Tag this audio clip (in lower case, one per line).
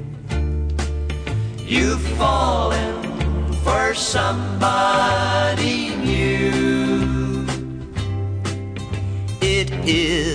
country
music